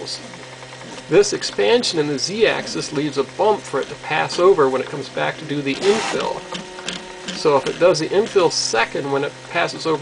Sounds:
speech, printer

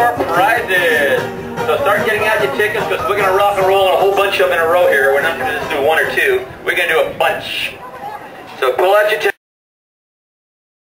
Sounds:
music, speech

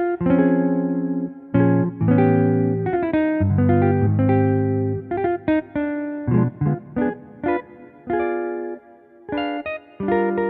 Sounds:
electronic organ, organ

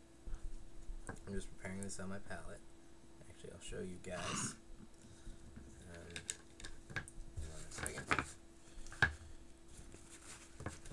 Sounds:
speech, inside a small room

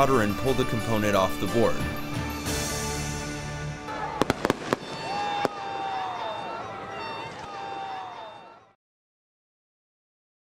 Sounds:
music, fireworks, speech

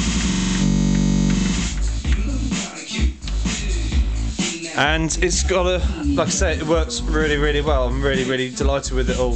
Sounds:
music, speech

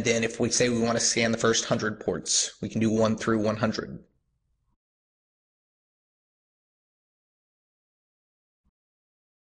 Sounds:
narration, speech

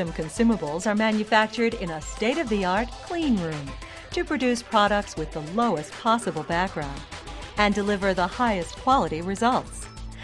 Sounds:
speech, music

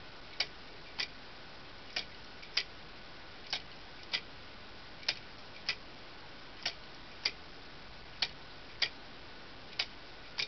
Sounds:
tick-tock, tick

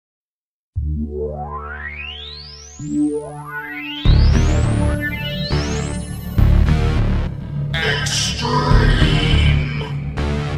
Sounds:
music

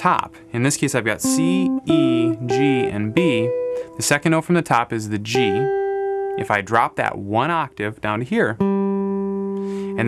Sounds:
electric guitar, strum, musical instrument, plucked string instrument, music, guitar, speech

